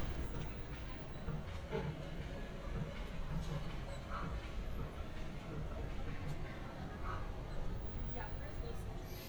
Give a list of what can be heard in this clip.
person or small group talking